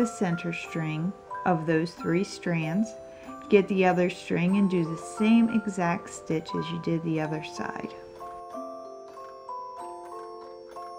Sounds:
xylophone, Mallet percussion, Glockenspiel

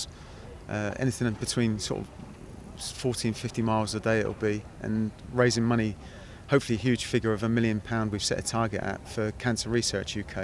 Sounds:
Speech

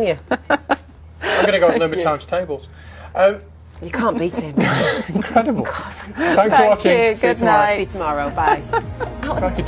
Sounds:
Speech, Music

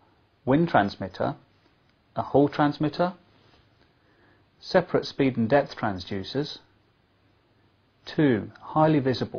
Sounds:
Speech

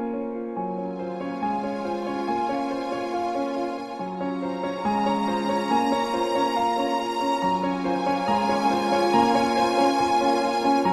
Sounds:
Music

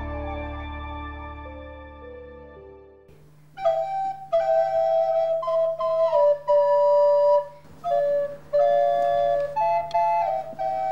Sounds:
Wind instrument, Music, Flute

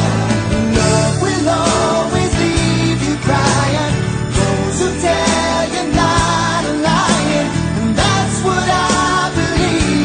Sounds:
Music

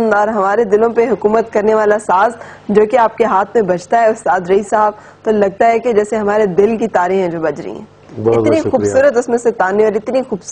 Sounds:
Speech

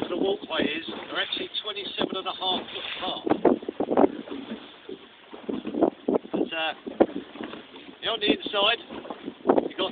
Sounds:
Speech

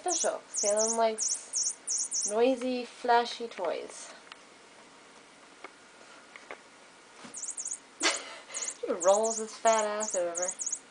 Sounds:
mouse pattering

